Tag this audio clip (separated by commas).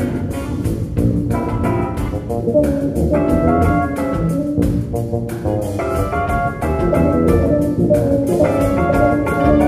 Bass guitar, Music, Musical instrument, Drum, Guitar, Jazz